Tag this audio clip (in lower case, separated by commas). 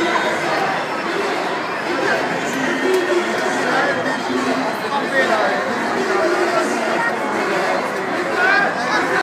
speech